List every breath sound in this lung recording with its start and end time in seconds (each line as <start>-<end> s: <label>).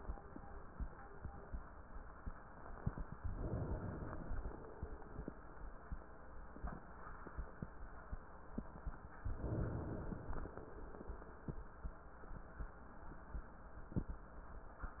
3.27-5.27 s: inhalation